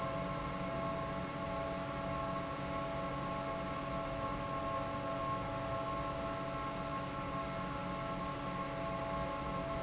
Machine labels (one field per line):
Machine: fan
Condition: normal